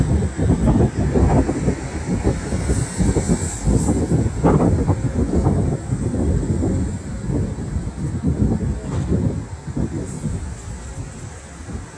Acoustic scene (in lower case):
street